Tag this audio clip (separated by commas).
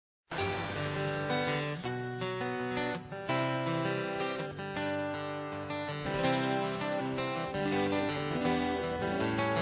Keyboard (musical), Electric piano, Piano